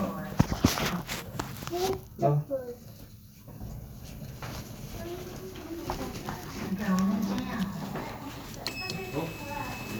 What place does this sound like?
elevator